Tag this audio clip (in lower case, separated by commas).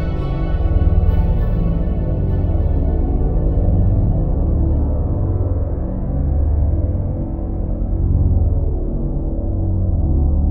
electronic music, music, ambient music